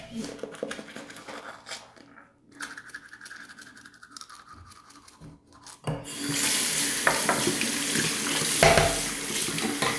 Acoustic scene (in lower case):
restroom